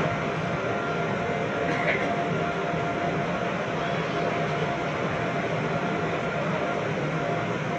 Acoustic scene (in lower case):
subway train